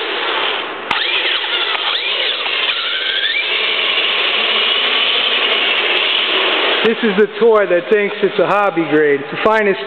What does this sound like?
A motor vehicle engine is running, high-pitched whirring occurs, and an adult male speaks